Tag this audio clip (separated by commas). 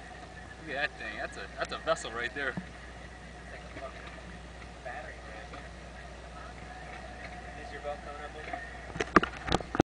Speech